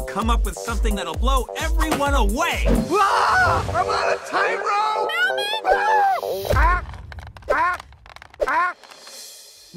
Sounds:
speech
music

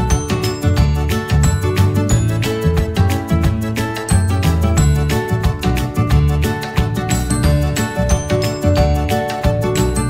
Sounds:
music

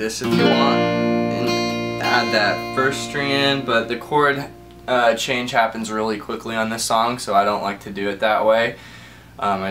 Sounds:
guitar
plucked string instrument
musical instrument
speech
music

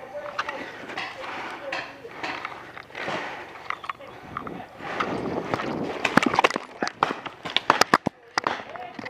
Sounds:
speech
footsteps

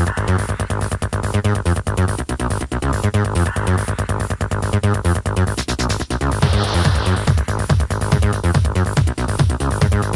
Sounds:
house music
music

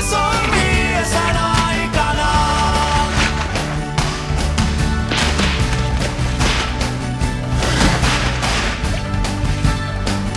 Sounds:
music

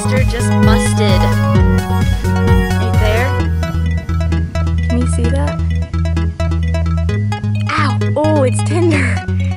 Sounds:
outside, rural or natural
music
speech

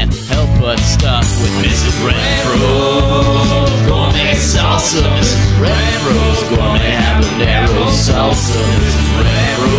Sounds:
music
jazz
pop music

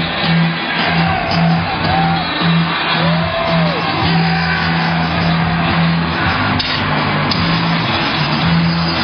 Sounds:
music

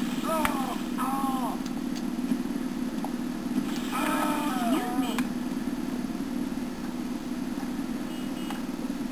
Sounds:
speech

